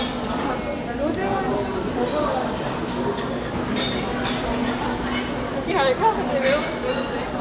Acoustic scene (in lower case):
crowded indoor space